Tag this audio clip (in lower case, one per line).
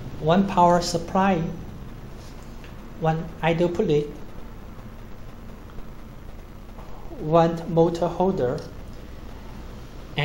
speech